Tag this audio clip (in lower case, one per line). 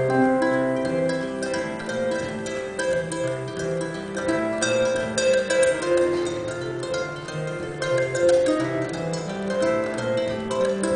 playing harp
pizzicato
harp